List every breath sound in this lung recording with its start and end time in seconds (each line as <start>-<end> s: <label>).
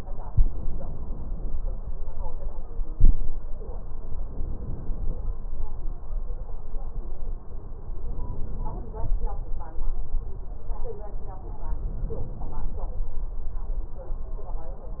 0.25-1.49 s: inhalation
4.17-5.25 s: inhalation
8.04-9.13 s: inhalation
11.86-12.86 s: inhalation